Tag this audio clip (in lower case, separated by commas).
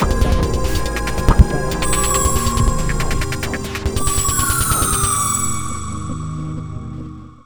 musical instrument, music